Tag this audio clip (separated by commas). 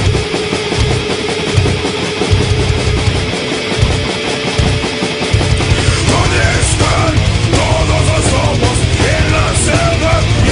Music, Jazz, Independent music